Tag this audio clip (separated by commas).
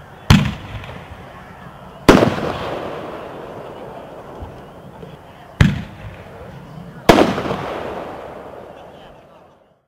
Fireworks, outside, urban or man-made, Speech